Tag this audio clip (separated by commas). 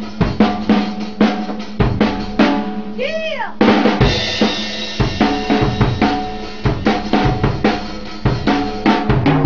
Drum roll, Drum, Music, Musical instrument, playing drum kit, inside a large room or hall, Drum kit